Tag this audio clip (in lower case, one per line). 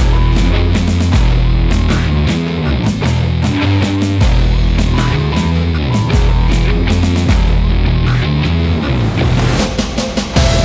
music